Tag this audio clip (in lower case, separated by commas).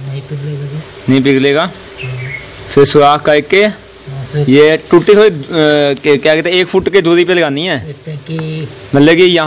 speech